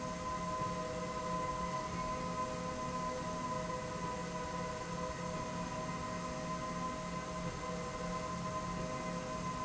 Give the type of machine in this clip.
slide rail